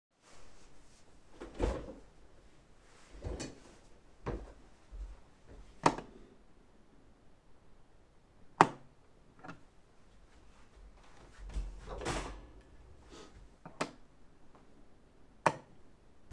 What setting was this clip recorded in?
office